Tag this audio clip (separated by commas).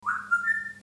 Animal, Bird, Wild animals